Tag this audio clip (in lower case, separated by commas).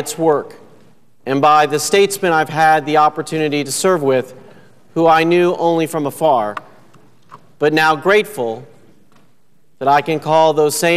man speaking, narration, speech